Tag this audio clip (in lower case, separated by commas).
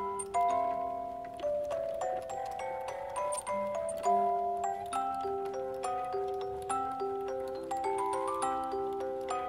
music, happy music